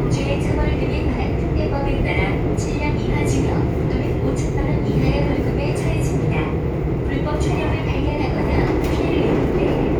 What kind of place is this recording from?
subway train